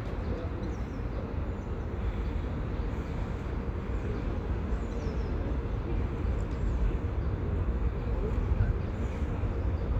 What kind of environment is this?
park